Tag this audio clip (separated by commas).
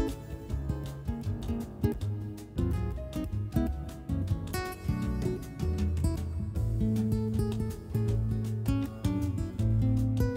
Music, Guitar, Musical instrument